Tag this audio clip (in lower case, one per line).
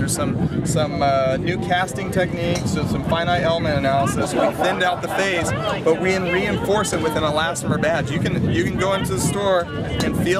speech